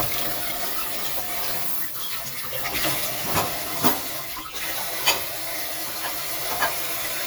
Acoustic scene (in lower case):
kitchen